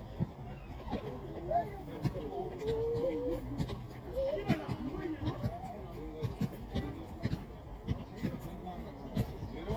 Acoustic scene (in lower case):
park